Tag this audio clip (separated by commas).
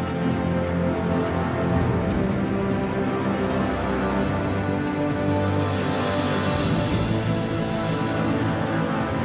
Music